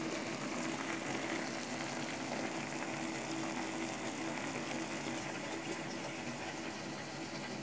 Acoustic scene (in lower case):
kitchen